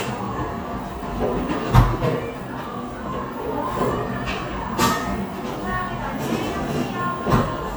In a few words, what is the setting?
cafe